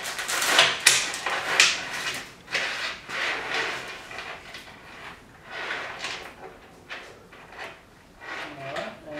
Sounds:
speech, inside a small room

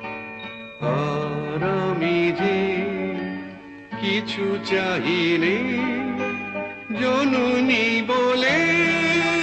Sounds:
music, singing

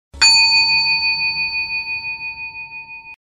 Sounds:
jingle, sound effect

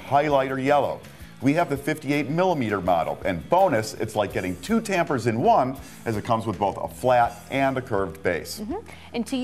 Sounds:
music, speech

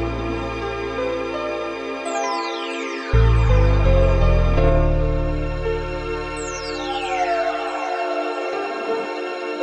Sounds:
music

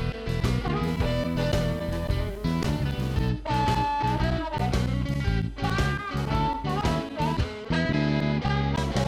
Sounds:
music

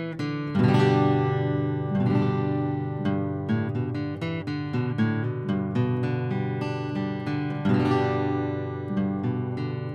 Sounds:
music, acoustic guitar

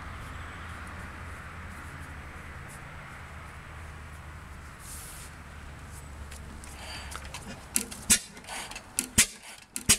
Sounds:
engine

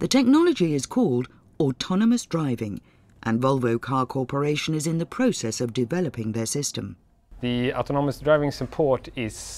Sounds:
narration

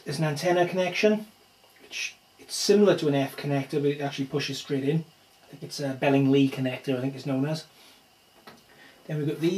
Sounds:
speech

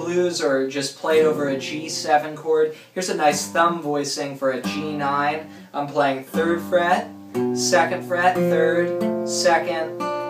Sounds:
musical instrument, acoustic guitar, music, guitar, plucked string instrument, speech, strum

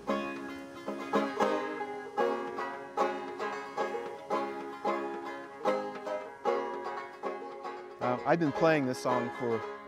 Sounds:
music, speech, banjo

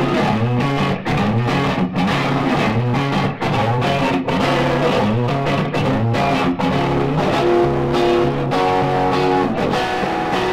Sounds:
guitar, acoustic guitar, music, strum, plucked string instrument, musical instrument

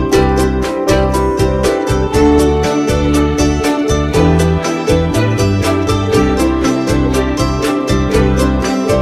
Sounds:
music

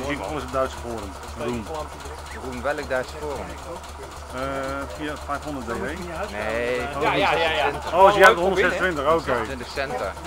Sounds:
medium engine (mid frequency), speech, engine

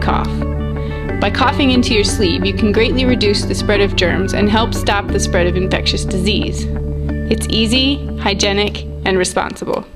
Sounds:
music, speech

